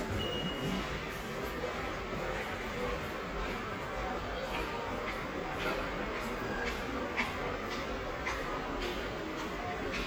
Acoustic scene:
subway station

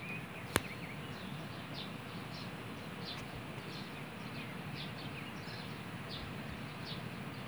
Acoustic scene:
park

